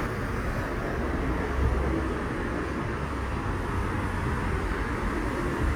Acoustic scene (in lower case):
street